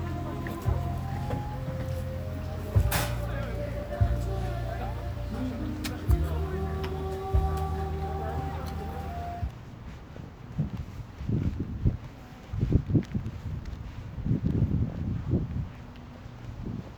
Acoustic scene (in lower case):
park